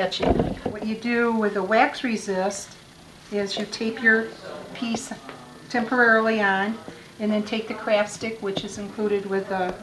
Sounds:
speech

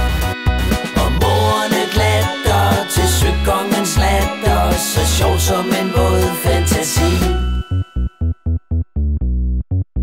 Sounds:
synthesizer

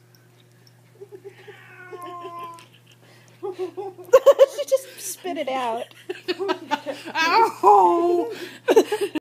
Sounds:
speech

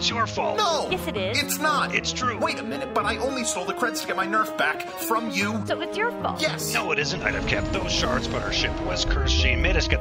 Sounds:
speech
music

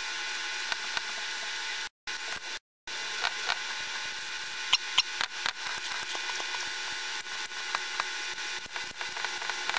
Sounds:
inside a small room

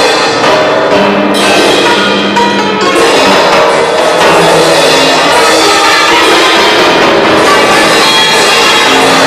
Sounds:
musical instrument
music
inside a large room or hall

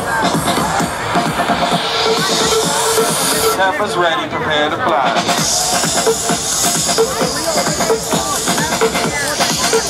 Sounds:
speech
music
exciting music

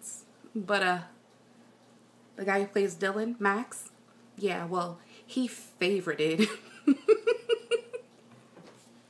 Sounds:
inside a small room
speech

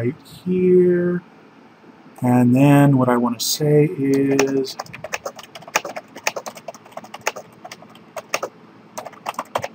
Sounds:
typing

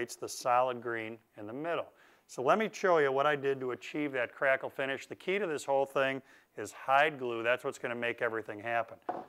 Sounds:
speech

